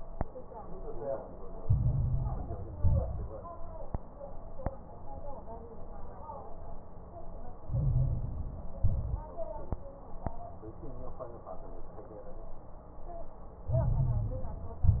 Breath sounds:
Inhalation: 1.59-2.69 s, 7.68-8.80 s, 13.65-14.82 s
Exhalation: 2.75-3.46 s, 8.84-9.31 s, 14.86-15.00 s
Crackles: 1.59-2.69 s, 2.75-3.46 s, 7.68-8.80 s, 8.84-9.31 s, 13.65-14.82 s, 14.86-15.00 s

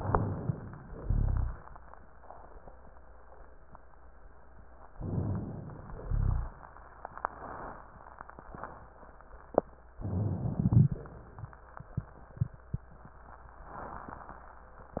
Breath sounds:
Inhalation: 0.00-0.97 s, 4.93-6.00 s, 10.00-11.02 s
Exhalation: 0.97-1.65 s, 6.00-6.62 s
Rhonchi: 0.97-1.65 s, 6.00-6.62 s
Crackles: 10.53-11.02 s

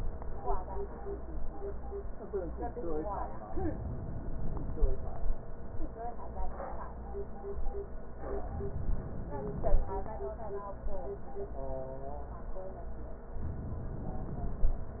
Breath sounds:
Inhalation: 3.54-5.13 s, 8.32-9.90 s

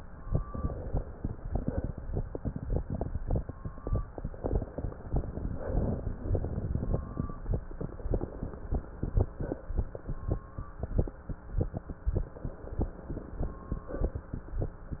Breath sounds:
Inhalation: 0.21-1.45 s, 4.37-5.51 s, 7.76-9.22 s, 12.20-13.86 s
Exhalation: 1.45-2.07 s, 5.51-6.23 s, 9.24-9.85 s, 13.86-14.51 s

